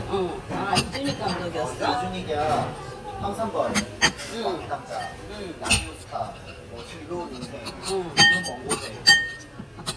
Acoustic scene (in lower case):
restaurant